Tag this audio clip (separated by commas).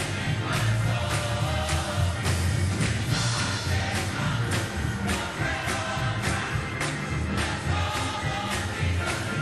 Music, Choir